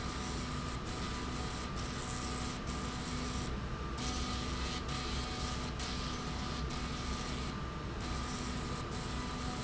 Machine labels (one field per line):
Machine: slide rail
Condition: abnormal